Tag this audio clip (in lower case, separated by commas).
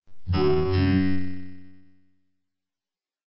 human voice, speech synthesizer, speech